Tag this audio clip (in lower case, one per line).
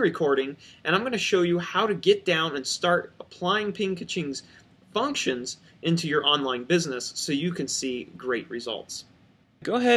speech